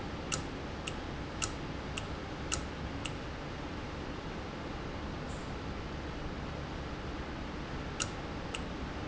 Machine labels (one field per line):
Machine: valve